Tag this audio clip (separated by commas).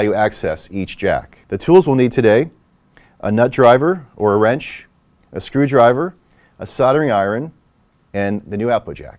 Speech